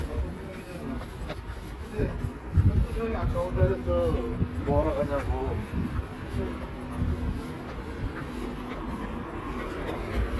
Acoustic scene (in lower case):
residential area